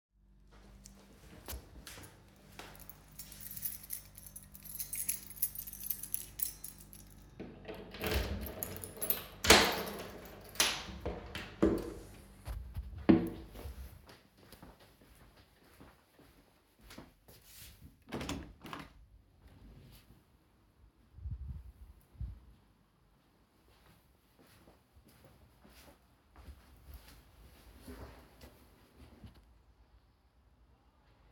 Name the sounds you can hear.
footsteps, keys, door, window